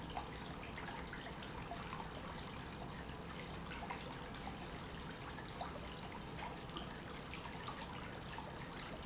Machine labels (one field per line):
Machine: pump